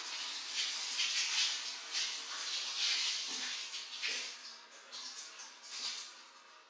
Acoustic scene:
restroom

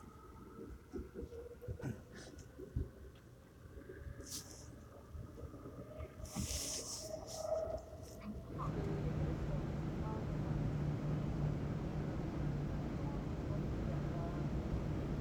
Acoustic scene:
subway train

